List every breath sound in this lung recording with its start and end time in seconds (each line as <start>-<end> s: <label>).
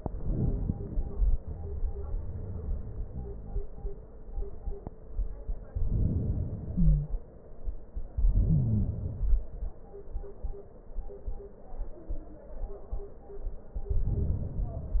0.00-1.12 s: inhalation
1.13-4.13 s: exhalation
5.56-6.69 s: inhalation
6.69-7.18 s: wheeze
6.69-7.89 s: exhalation
8.13-8.91 s: inhalation
8.16-8.91 s: wheeze
8.91-10.91 s: exhalation